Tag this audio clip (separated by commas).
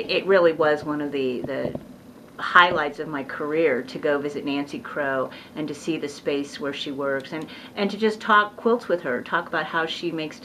Speech